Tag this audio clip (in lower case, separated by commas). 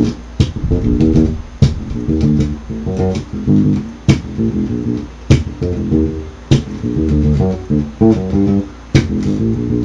harmonic, music